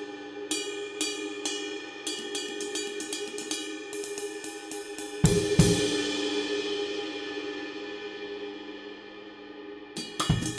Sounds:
Music, Hi-hat

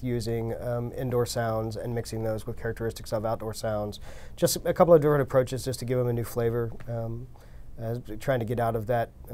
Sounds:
Speech

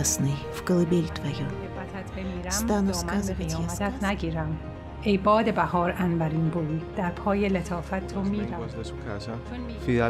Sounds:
Music, Speech

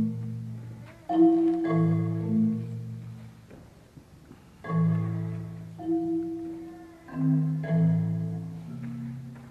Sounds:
Music

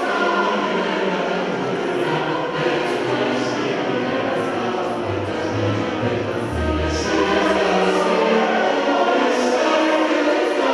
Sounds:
Music

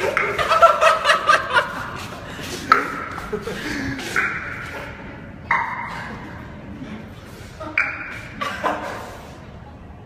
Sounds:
Ping

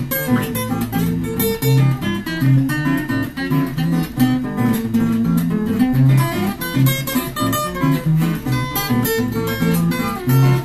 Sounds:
Musical instrument, Mandolin, Guitar, Plucked string instrument

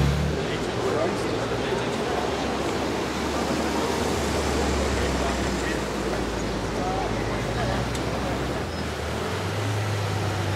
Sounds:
Vehicle, Speech, Car

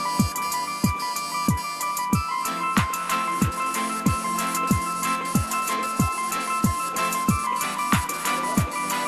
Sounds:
Speech, Printer, Music

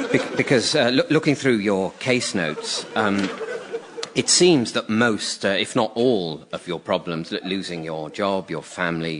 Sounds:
Speech

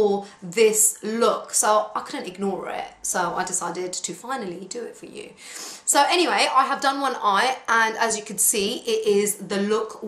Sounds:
Speech

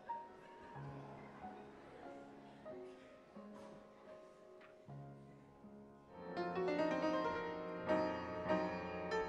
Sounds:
Music, New-age music

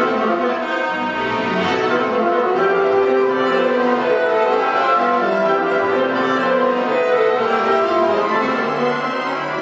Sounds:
Music

